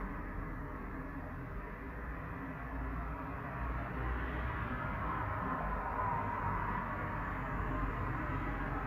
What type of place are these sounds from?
street